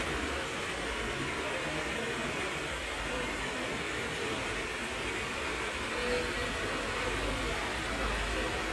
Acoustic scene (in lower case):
park